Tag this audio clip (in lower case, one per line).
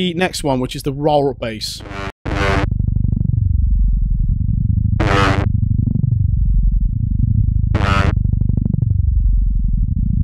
music
speech
electronic music